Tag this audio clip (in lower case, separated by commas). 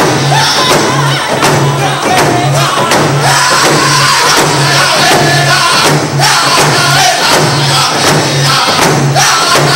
percussion, drum